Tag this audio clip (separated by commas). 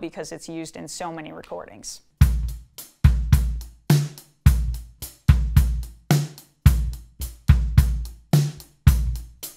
playing bass drum